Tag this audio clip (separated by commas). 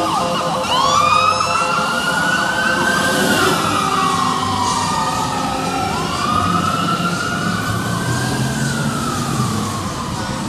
fire truck (siren), Police car (siren)